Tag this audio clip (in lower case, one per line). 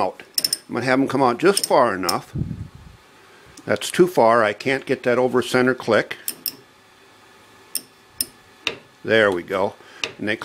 tools
speech